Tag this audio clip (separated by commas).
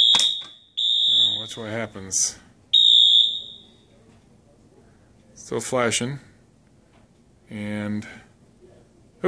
Speech, inside a small room, Fire alarm